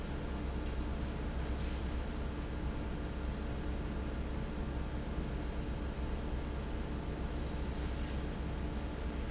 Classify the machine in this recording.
fan